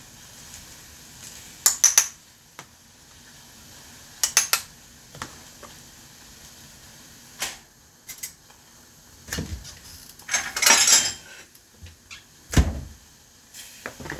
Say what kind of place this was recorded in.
kitchen